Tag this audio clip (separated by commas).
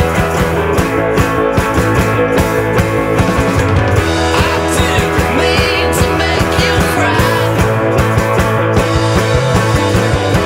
Music